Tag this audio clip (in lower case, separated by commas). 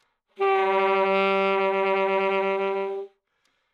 musical instrument, music, wind instrument